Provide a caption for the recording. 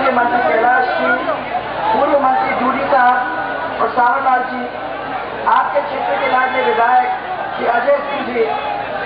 Women speaking in front of large crowd